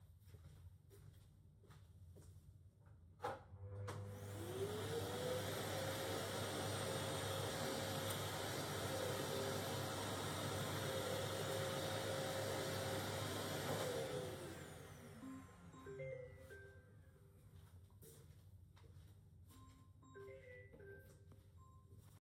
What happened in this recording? I get up and turned off my alarm, switched on the lights and opened the door